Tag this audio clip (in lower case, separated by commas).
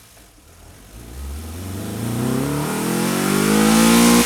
engine, revving